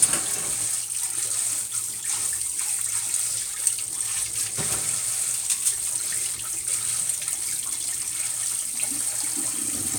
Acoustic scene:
kitchen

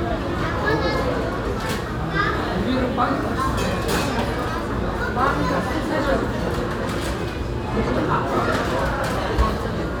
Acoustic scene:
cafe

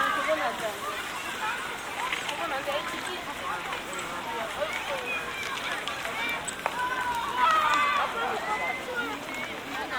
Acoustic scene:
park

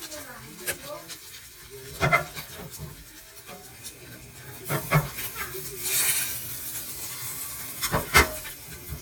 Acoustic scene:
kitchen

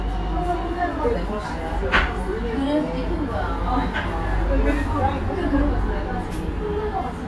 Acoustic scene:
restaurant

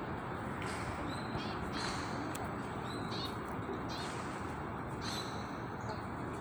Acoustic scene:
park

